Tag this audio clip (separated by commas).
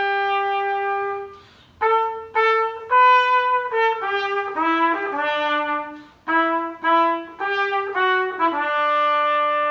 playing cornet